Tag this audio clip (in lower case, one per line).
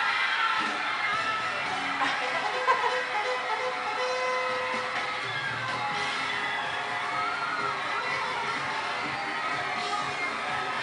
music